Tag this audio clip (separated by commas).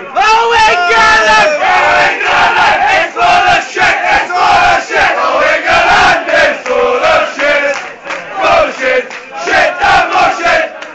Speech, Male singing